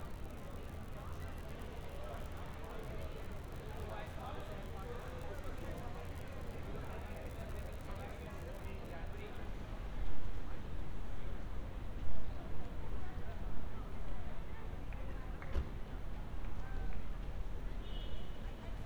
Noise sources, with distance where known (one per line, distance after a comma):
person or small group talking